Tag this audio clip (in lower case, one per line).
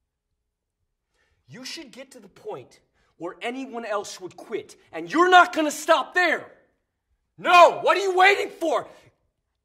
monologue
speech
man speaking